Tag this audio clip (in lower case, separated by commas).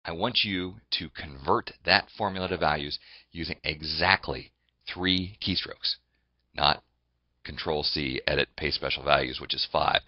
speech